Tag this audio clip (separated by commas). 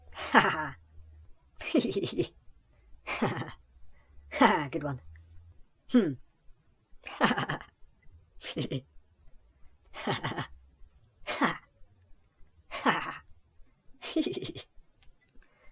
Human voice, Laughter